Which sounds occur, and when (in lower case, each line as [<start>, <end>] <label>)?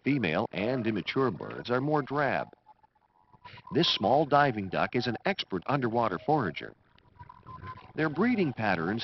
[0.00, 2.43] man speaking
[0.00, 9.03] music
[0.00, 9.03] water
[0.57, 1.69] flapping wings
[3.43, 3.59] noise
[3.62, 6.69] man speaking
[7.96, 9.03] man speaking